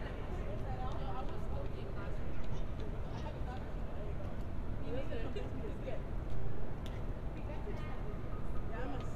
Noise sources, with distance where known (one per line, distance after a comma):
person or small group talking, near